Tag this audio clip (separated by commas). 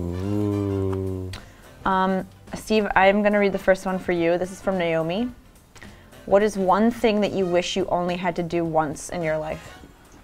Speech, Music